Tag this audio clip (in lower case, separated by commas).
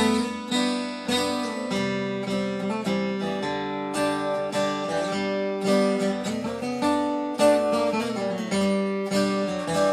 plucked string instrument, guitar, music, musical instrument, acoustic guitar, strum